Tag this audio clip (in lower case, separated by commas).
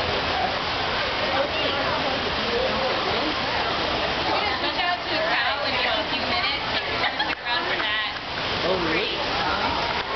speech